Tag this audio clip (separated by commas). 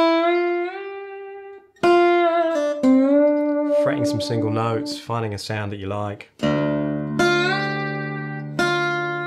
slide guitar